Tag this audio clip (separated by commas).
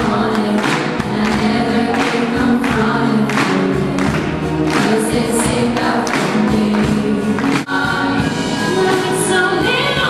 Female singing, Music